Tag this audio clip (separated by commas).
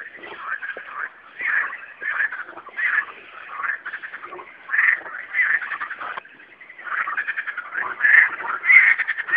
Croak, frog croaking, Frog